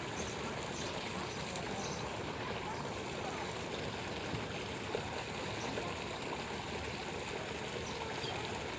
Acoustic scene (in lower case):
park